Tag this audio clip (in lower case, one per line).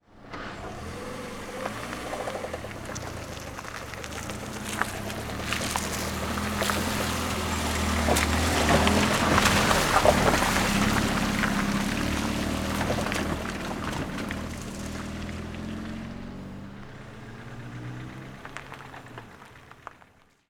vehicle
engine
car
motor vehicle (road)
car passing by